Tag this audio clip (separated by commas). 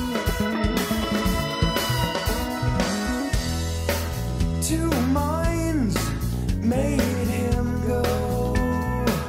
Music, Pop music, Reggae